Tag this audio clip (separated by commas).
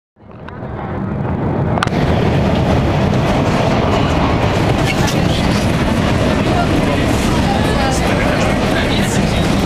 Train, Rail transport, Railroad car, Subway